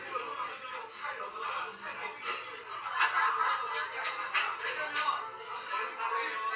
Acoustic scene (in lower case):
restaurant